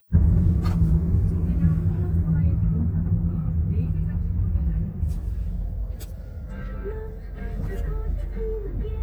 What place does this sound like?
car